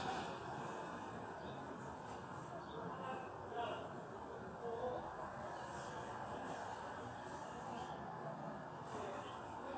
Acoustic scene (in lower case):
residential area